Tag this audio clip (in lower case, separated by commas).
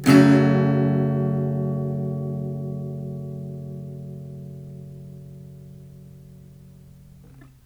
guitar, strum, plucked string instrument, music, acoustic guitar, musical instrument